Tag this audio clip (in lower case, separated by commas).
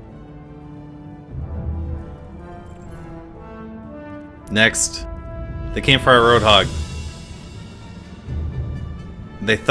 speech, music, male speech